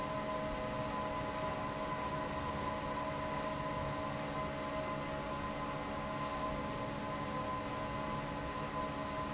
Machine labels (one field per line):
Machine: fan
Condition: normal